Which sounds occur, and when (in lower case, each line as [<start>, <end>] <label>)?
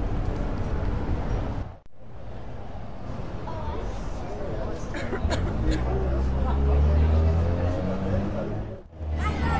[0.00, 9.55] background noise
[0.00, 9.55] motor vehicle (road)
[0.21, 0.38] generic impact sounds
[0.58, 0.83] generic impact sounds
[1.23, 1.43] generic impact sounds
[3.39, 6.95] speech noise
[4.91, 6.29] cough
[9.16, 9.55] speech noise